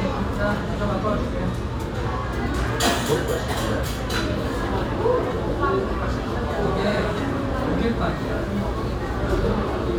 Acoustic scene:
cafe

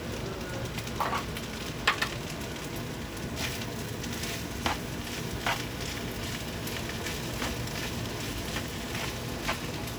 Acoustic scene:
kitchen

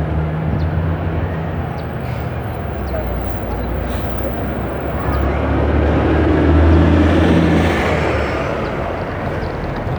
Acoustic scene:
street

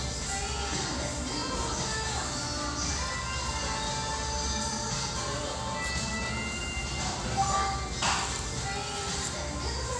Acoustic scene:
restaurant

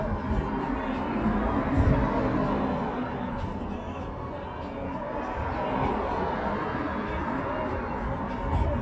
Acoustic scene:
street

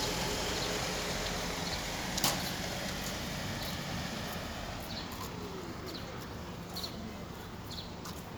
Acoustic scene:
residential area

